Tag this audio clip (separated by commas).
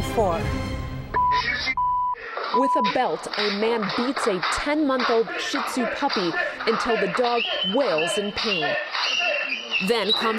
Speech, Music